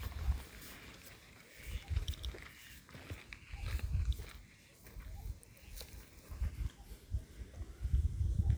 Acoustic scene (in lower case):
park